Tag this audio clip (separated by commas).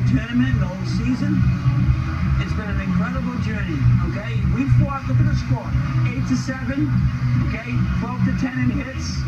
Music, Speech, Narration, man speaking